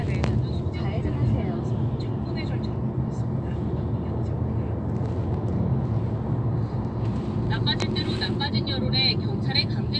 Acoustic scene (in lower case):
car